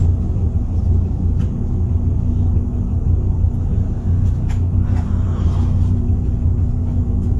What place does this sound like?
bus